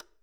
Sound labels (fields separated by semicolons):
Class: switch; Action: being turned on; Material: plastic